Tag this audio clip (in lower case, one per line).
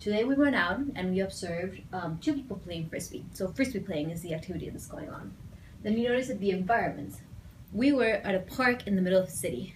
speech